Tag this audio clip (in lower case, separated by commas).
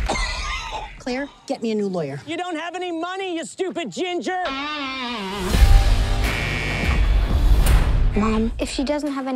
music, speech